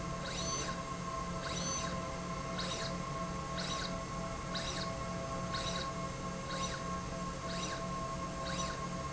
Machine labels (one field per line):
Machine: slide rail